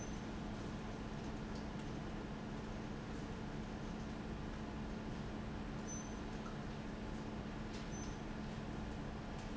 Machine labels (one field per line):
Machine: fan